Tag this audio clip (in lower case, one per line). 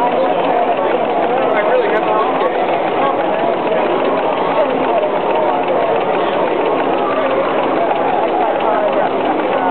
speech
engine
idling